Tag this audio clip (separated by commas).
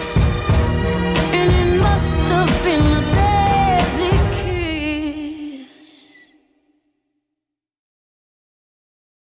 Music, Pop music